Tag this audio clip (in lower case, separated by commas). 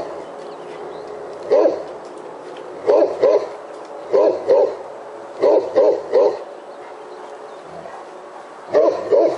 animal, dog, bird